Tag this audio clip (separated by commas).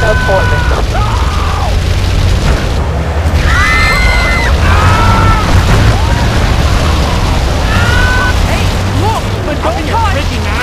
Vehicle, Speech, Car